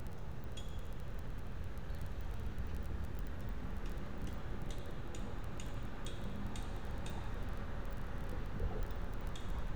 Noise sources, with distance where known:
background noise

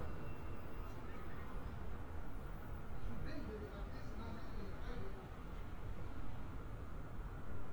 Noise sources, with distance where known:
person or small group talking

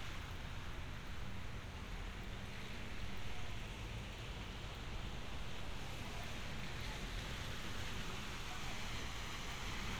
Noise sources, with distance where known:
background noise

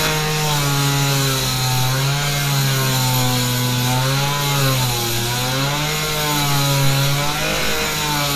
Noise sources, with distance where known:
large rotating saw, near

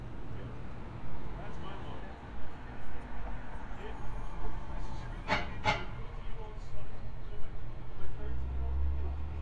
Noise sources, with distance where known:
person or small group talking, near

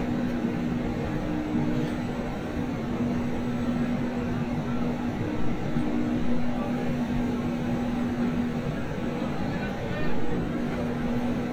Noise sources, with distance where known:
unidentified human voice, near

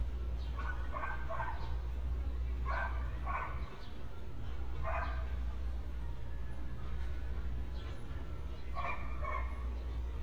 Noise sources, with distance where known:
person or small group talking, far
dog barking or whining, near

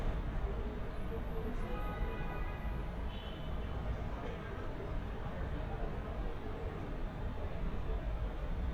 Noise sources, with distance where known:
car horn, far
person or small group talking, far

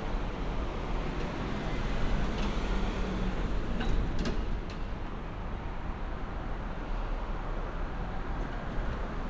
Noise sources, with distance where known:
engine of unclear size

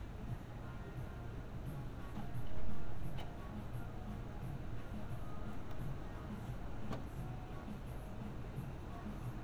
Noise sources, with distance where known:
music from an unclear source, far

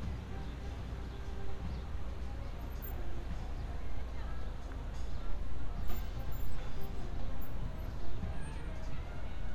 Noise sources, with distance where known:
music from a fixed source, far

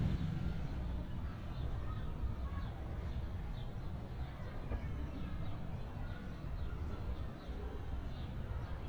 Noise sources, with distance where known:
unidentified human voice

